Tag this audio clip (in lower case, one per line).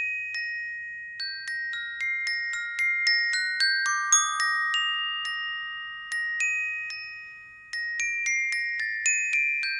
playing glockenspiel